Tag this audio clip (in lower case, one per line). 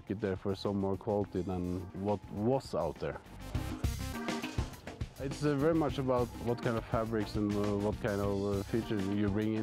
speech
music